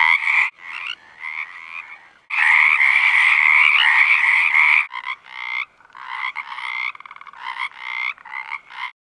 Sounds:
frog croaking

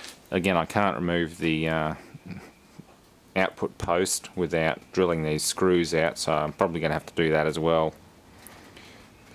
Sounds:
inside a small room, speech

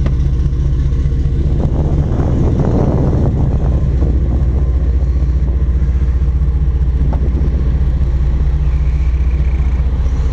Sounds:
water vehicle, vehicle

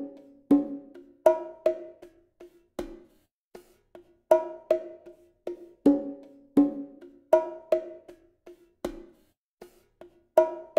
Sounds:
playing bongo

